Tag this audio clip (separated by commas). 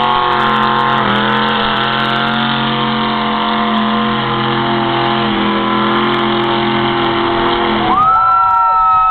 Truck, Vehicle